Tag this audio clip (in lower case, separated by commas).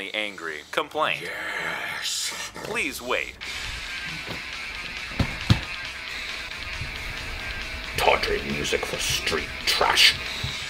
music, speech